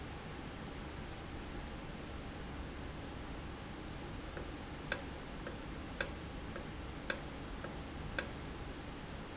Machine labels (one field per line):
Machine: valve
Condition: normal